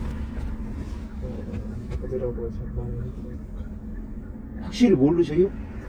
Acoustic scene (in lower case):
car